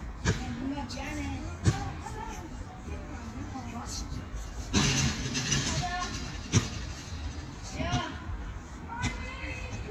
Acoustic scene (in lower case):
residential area